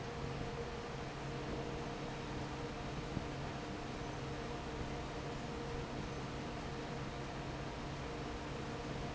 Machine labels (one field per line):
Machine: fan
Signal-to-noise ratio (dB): 0 dB